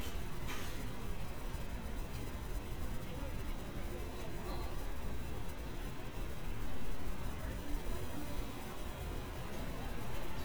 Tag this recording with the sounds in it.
person or small group talking